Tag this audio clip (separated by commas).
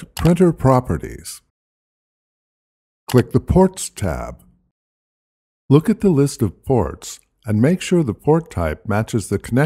Speech